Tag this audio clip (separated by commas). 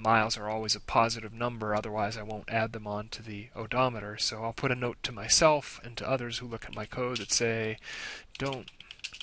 Speech